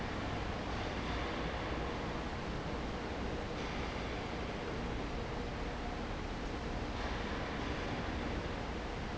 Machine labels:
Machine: fan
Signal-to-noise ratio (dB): -6 dB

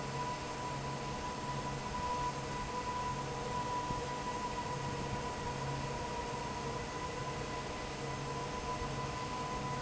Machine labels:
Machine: fan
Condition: normal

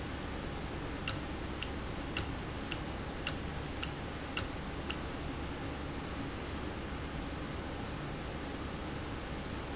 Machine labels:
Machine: valve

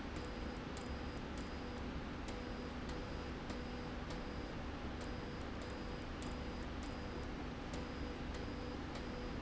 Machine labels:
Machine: slide rail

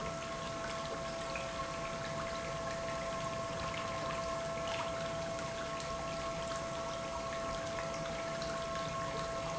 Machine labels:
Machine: pump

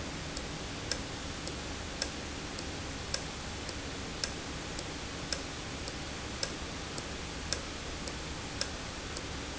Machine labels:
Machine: valve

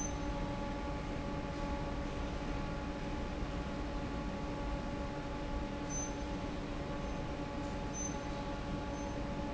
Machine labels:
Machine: fan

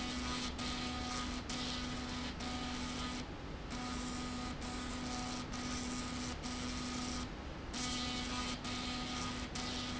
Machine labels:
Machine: slide rail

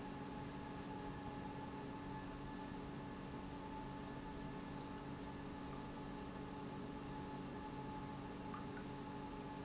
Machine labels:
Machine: pump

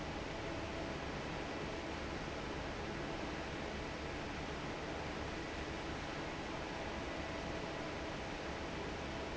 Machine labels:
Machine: fan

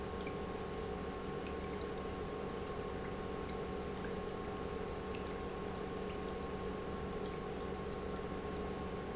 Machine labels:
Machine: pump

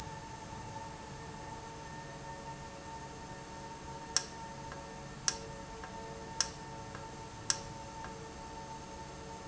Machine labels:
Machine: valve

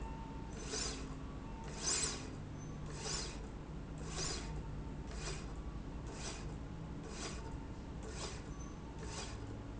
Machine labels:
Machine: slide rail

